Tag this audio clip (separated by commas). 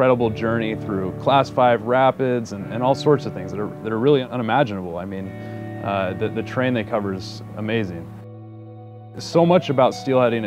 Music, Speech